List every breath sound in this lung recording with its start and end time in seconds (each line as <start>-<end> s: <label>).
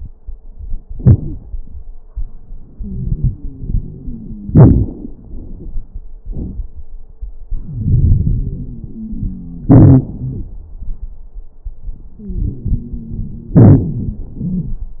2.71-4.51 s: inhalation
2.71-4.51 s: wheeze
4.48-6.00 s: exhalation
4.48-6.00 s: crackles
7.45-9.68 s: inhalation
7.45-9.68 s: wheeze
9.70-10.75 s: exhalation
9.70-10.75 s: crackles
12.18-13.58 s: inhalation
12.18-13.58 s: wheeze
13.56-14.96 s: exhalation
13.90-14.29 s: wheeze
14.45-14.85 s: wheeze